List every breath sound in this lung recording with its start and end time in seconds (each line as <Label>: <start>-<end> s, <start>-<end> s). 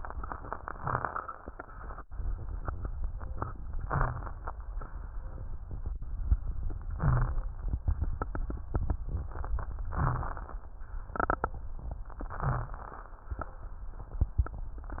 Inhalation: 0.76-1.52 s, 3.70-4.37 s, 6.86-7.82 s, 9.87-10.68 s, 12.20-12.80 s
Wheeze: 3.80-4.25 s, 6.98-7.42 s, 9.98-10.30 s, 12.20-12.80 s